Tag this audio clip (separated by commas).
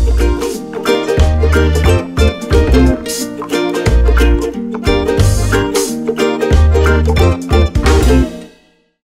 Music